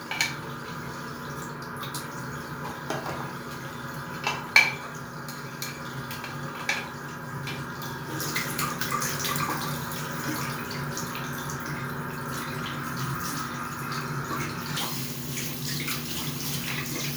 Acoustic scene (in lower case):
restroom